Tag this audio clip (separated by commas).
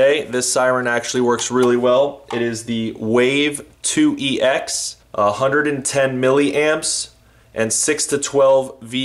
Speech